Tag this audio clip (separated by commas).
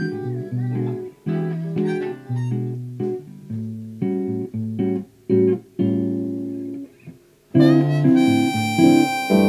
Music, Electronic tuner